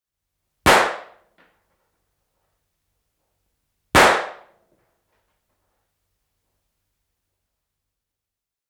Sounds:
Gunshot, Explosion

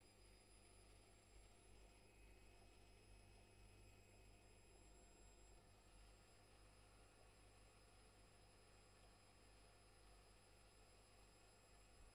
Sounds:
Engine

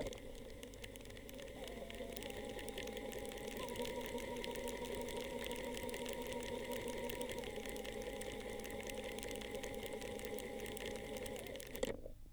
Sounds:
Mechanisms

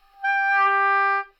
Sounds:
Music, Musical instrument, woodwind instrument

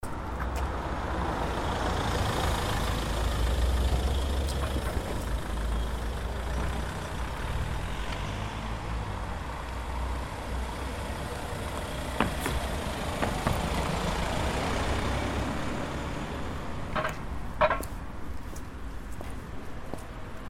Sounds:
Vehicle

